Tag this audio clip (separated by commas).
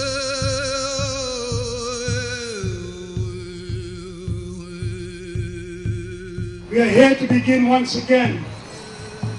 Speech, Music